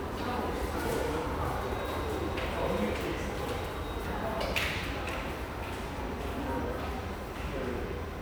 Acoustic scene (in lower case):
subway station